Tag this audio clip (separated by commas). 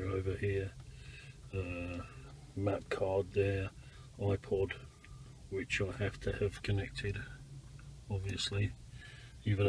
Speech